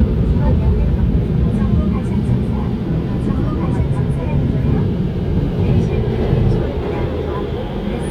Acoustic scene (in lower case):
subway train